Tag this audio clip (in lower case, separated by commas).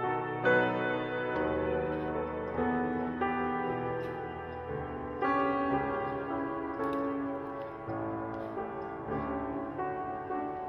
music